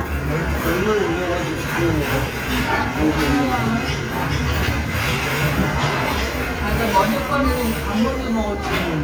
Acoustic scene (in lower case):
restaurant